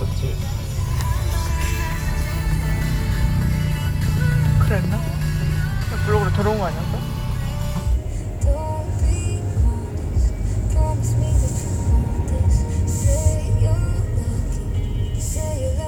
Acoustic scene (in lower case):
car